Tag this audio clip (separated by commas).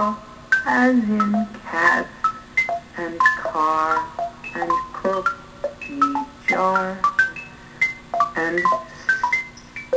inside a small room, Music, Speech